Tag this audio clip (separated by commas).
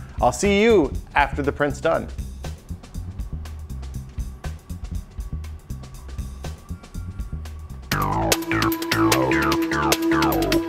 Trance music, Speech, Electronica, Music